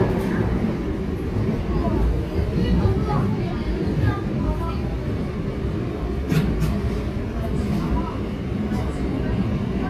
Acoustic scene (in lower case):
subway train